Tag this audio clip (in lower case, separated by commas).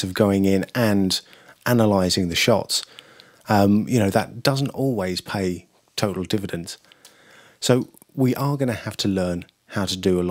speech